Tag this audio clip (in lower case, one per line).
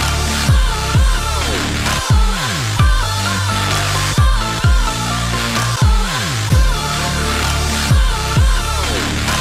music